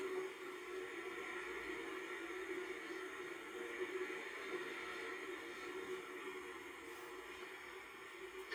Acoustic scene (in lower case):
car